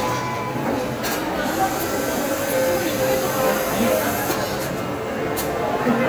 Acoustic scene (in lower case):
cafe